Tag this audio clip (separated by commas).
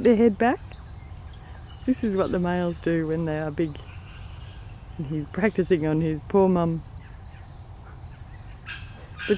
Animal, Speech